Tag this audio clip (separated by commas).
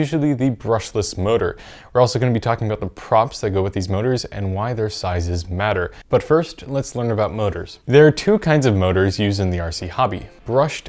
Speech